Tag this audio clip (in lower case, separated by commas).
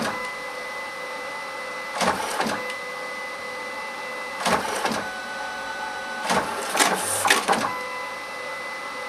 printer